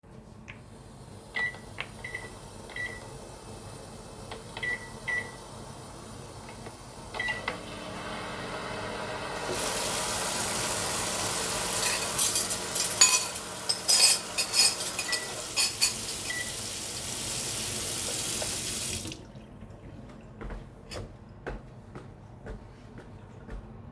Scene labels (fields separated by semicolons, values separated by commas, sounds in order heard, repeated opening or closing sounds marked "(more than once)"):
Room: kitchen; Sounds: microwave, running water, cutlery and dishes, footsteps